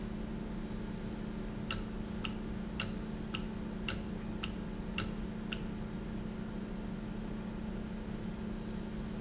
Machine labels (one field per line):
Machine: valve